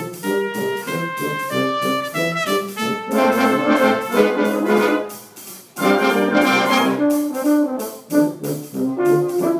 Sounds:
trumpet
trombone
brass instrument

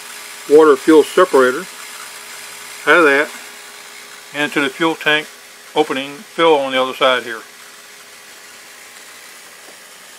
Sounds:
speech

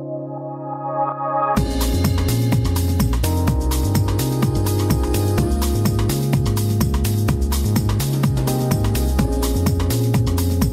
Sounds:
music

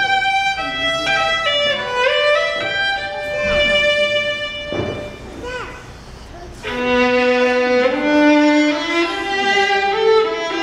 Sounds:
fiddle
music
speech
musical instrument

